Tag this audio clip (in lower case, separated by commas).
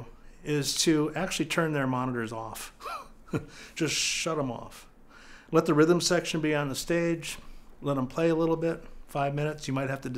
speech